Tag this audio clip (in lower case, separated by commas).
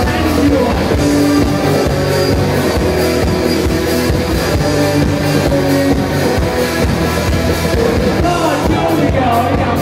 music